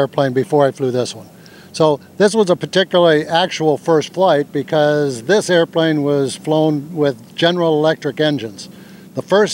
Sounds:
Speech

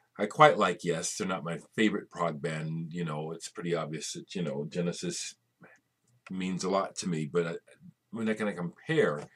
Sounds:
Speech

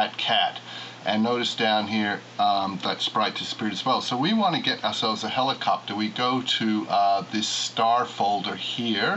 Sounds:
Speech

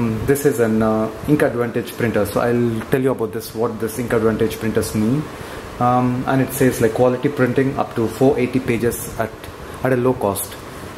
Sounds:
Speech

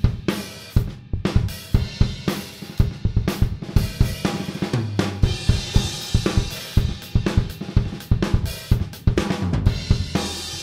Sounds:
Musical instrument, Drum, Drum kit, Music

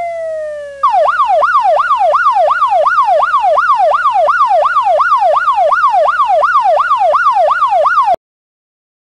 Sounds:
Police car (siren)

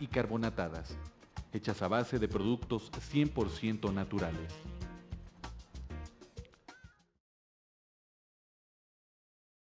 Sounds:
Speech, Music

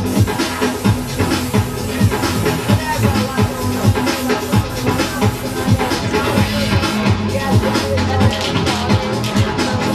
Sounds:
Music, Speech, Spray

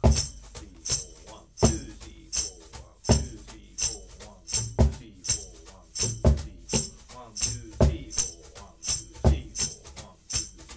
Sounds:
playing tambourine

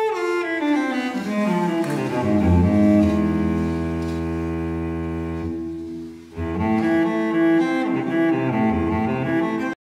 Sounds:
Music, String section

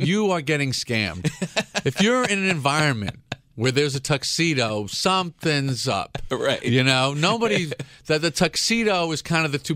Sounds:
Speech

